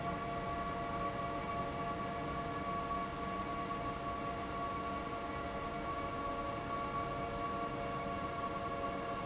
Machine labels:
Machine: fan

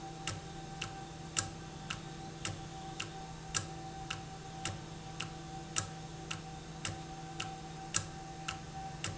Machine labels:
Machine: valve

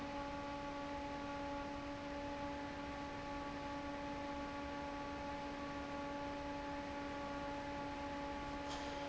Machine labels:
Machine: fan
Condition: normal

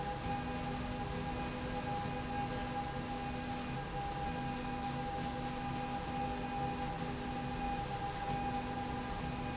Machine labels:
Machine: slide rail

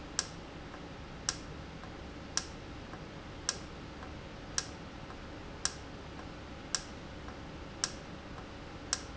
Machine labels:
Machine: valve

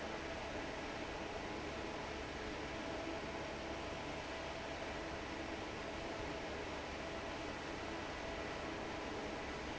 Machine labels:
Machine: fan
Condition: normal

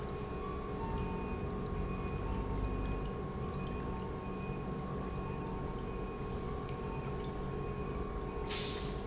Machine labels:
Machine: pump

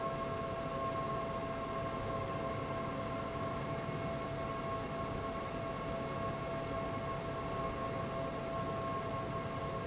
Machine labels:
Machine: fan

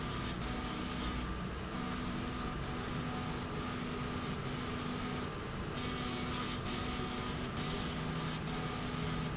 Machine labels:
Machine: slide rail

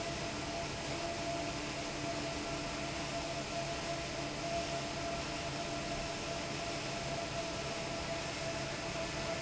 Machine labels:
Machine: fan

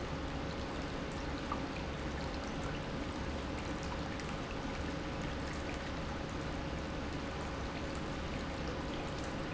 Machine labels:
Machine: pump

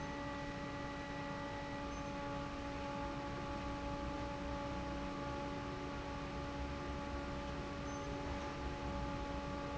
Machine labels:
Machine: fan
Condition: normal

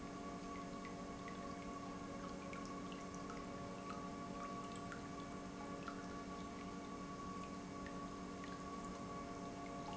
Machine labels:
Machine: pump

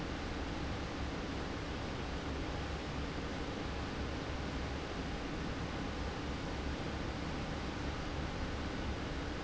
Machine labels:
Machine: fan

